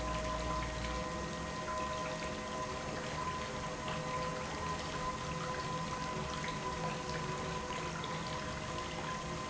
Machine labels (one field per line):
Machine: pump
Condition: normal